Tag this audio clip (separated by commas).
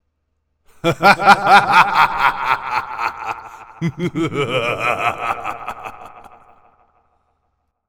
Human voice, Laughter